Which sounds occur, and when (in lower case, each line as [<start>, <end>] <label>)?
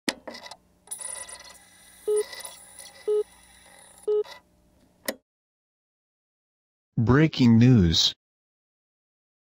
[0.00, 5.19] sound effect
[2.03, 2.21] beep
[3.08, 3.20] beep
[4.05, 4.22] beep
[6.97, 8.25] male speech